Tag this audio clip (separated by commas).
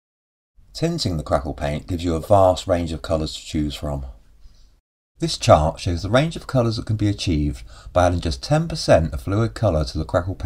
Speech